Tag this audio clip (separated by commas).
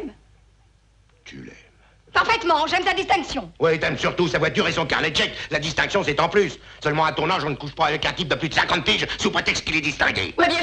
Speech